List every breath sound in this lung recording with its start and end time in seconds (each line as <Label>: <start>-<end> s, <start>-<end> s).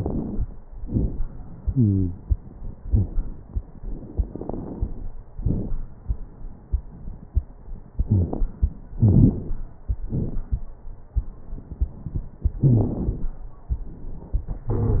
Inhalation: 0.00-0.49 s, 4.13-5.06 s, 9.00-9.71 s
Exhalation: 0.78-1.26 s, 5.34-5.77 s, 10.07-10.68 s
Wheeze: 1.57-2.16 s, 2.81-3.09 s, 8.09-8.38 s, 12.67-12.96 s, 14.70-14.98 s
Crackles: 0.00-0.49 s, 0.78-1.26 s, 4.13-5.06 s, 5.34-5.77 s, 9.00-9.71 s, 10.07-10.68 s